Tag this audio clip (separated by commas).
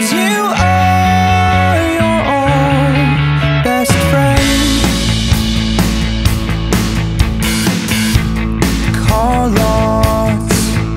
Music